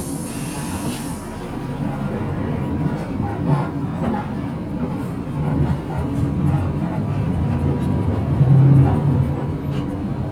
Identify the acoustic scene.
bus